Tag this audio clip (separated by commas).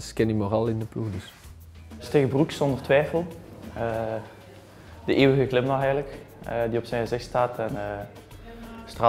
Music, Speech